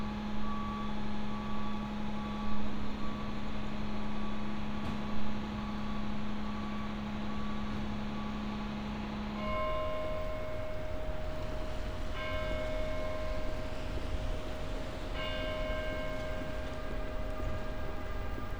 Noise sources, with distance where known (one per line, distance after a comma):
unidentified alert signal